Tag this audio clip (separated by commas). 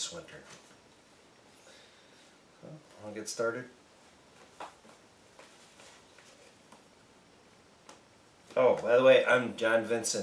Speech